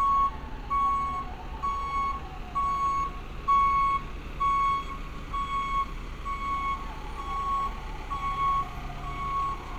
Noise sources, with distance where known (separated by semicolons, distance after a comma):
large-sounding engine, near; siren, far; reverse beeper, near